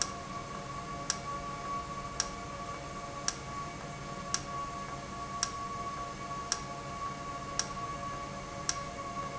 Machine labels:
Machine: valve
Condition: normal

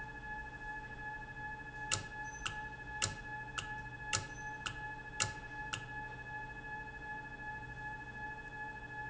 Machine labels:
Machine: valve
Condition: normal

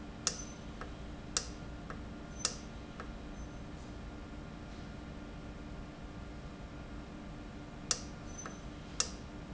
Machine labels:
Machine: valve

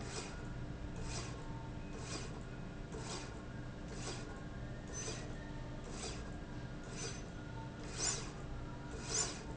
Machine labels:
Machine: slide rail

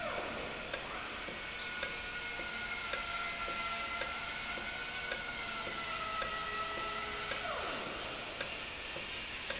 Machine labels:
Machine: valve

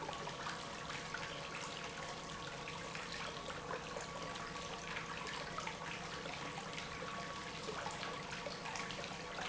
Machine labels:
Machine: pump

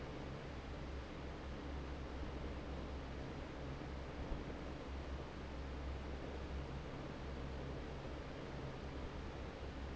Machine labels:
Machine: fan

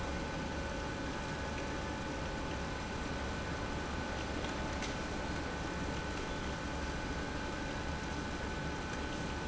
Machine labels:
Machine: pump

